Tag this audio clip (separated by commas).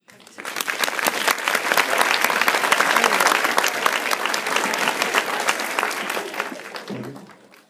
Human group actions, Applause